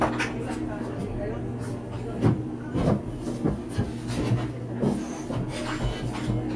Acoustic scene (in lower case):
cafe